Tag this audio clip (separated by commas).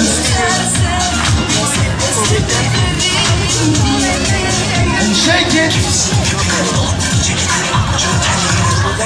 Music, inside a large room or hall, Speech